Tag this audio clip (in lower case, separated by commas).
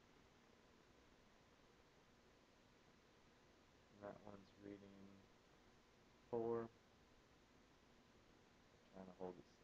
speech